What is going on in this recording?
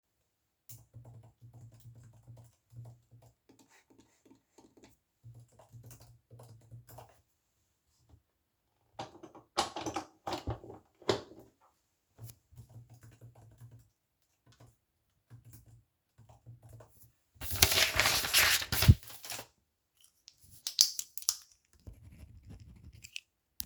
I typed on the keyboard and used mouse, then plugged my charger, i continued typing. Than I took a piece of paper and wrote down notes.